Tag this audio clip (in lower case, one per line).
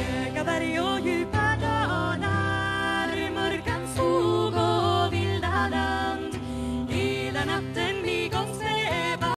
music